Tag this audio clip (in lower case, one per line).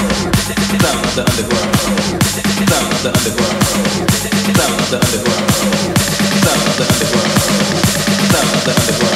dance music
electronic dance music
house music
music